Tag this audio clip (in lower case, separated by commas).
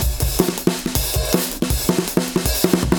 music, drum kit, percussion, musical instrument, drum